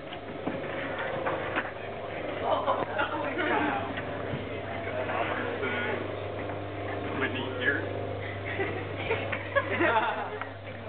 People talking and laughing